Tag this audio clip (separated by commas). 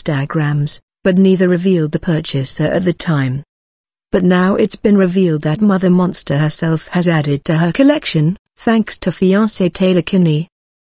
Speech